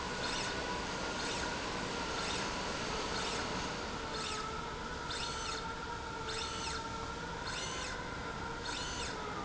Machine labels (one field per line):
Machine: slide rail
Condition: normal